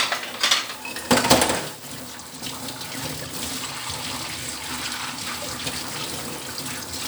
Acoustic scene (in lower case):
kitchen